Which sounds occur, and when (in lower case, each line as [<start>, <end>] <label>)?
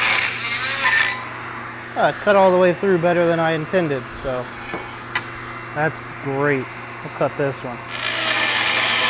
[0.00, 9.05] mechanisms
[0.00, 9.05] power tool
[1.95, 3.97] male speech
[4.19, 4.45] male speech
[4.67, 4.82] tap
[5.11, 5.19] tick
[5.72, 5.98] male speech
[6.21, 6.69] male speech
[7.02, 7.83] male speech